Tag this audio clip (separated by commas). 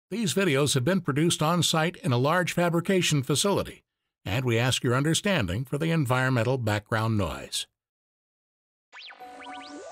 arc welding